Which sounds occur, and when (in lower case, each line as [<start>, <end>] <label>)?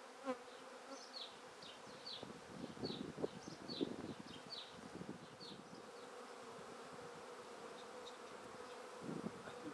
[0.00, 9.73] buzz
[0.00, 9.73] wind
[0.39, 0.58] tweet
[0.85, 1.30] tweet
[1.58, 2.25] tweet
[2.15, 4.41] wind noise (microphone)
[2.54, 2.69] tweet
[2.80, 2.98] tweet
[3.19, 3.86] tweet
[4.03, 4.72] tweet
[4.70, 5.85] wind noise (microphone)
[5.19, 5.52] tweet
[5.66, 5.77] tweet
[5.94, 6.05] tweet
[6.65, 7.02] wind noise (microphone)
[7.73, 7.83] generic impact sounds
[8.02, 8.12] generic impact sounds
[8.23, 8.29] generic impact sounds
[8.45, 8.58] wind noise (microphone)
[8.66, 8.74] generic impact sounds
[9.00, 9.31] wind noise (microphone)
[9.39, 9.73] man speaking